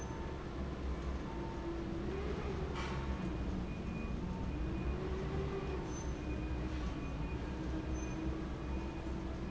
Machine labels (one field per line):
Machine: fan